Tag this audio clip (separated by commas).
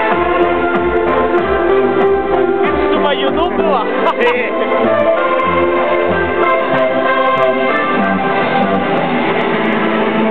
Speech, Music